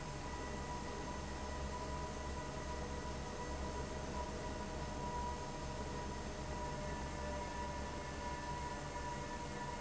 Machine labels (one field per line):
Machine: fan